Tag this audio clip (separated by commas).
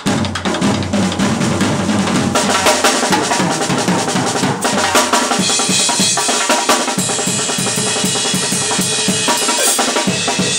Drum kit, Musical instrument, Music, Drum